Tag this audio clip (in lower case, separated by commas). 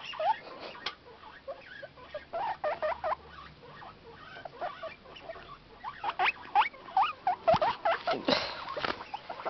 rodents